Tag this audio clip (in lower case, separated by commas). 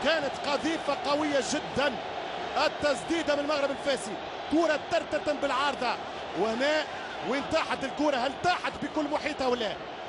speech